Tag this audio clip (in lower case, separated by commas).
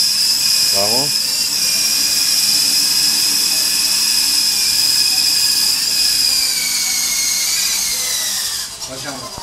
speech